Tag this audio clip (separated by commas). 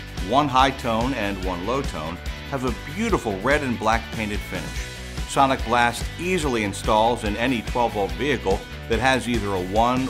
Music, Speech